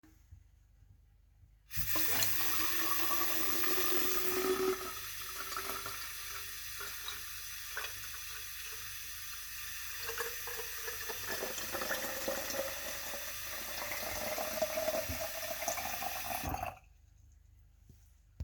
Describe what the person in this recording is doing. I filled a bottle with water.